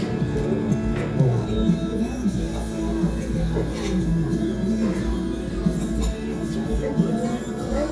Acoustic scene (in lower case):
restaurant